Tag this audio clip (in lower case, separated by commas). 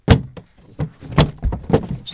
thump